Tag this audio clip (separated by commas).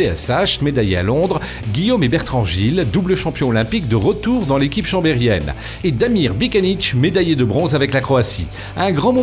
Speech, Music